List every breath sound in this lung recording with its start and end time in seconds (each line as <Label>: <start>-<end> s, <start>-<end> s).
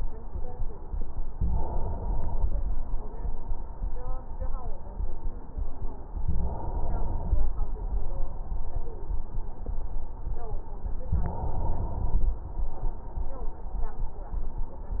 Inhalation: 1.43-2.79 s, 6.18-7.53 s, 11.05-12.41 s